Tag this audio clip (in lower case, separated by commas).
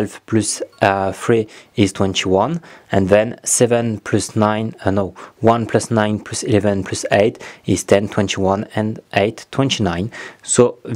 speech